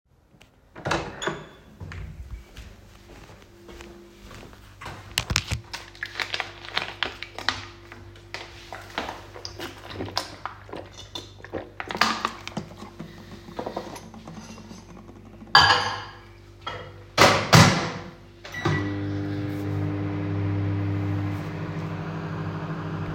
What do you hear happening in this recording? I opened the door, went to the kitchen, drank some water and put cup of tea in the microwave and started it